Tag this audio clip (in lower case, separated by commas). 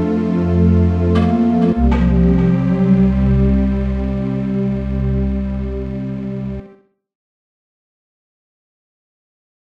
music